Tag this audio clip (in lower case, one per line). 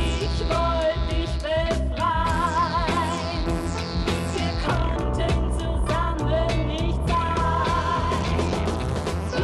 music